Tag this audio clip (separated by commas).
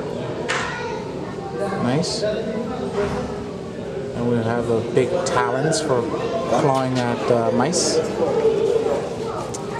Speech